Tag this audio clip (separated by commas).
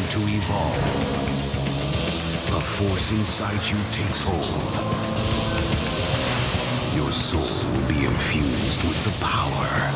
Musical instrument, Speech, Music